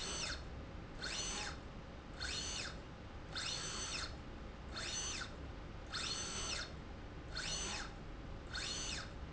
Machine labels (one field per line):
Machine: slide rail